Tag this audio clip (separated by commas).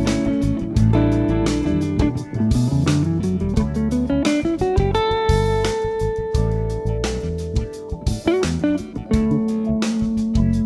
Acoustic guitar, Guitar, Strum, Musical instrument, Music, Electric guitar, Jazz, Plucked string instrument